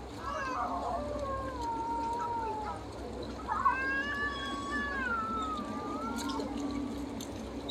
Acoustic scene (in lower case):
park